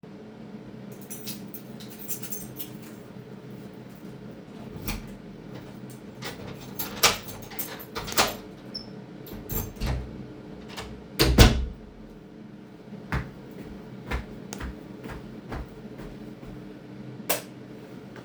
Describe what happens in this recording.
I enter my home, jingle my keys in my hand, open and close the front door, take a few steps inside, and flip the light switch.